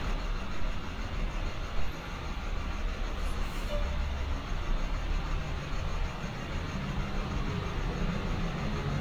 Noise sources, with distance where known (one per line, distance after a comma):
large-sounding engine, near